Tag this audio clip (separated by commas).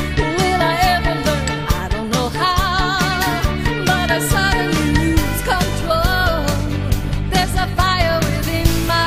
Music